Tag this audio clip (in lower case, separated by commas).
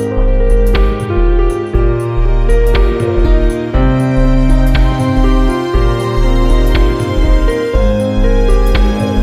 background music, music, keyboard (musical), musical instrument, electronic music, synthesizer